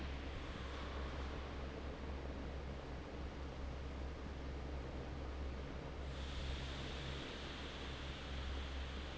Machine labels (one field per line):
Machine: fan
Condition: normal